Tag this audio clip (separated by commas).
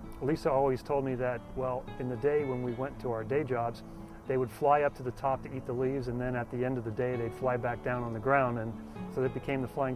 Music, Speech